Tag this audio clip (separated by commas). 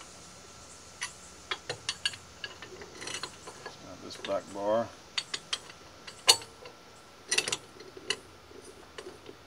Speech